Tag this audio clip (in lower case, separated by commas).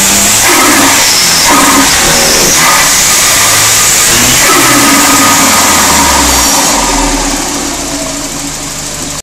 accelerating, vehicle